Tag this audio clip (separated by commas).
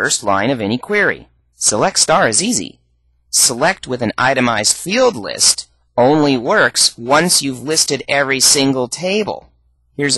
Speech